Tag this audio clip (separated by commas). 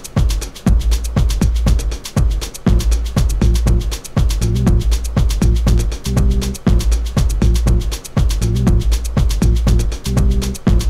Dance music, Music